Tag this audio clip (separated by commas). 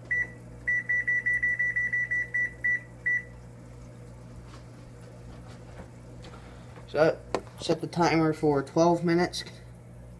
Speech, inside a small room, Beep